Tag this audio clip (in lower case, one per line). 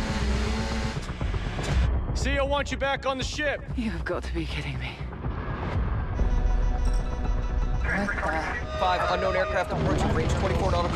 vehicle
speech
music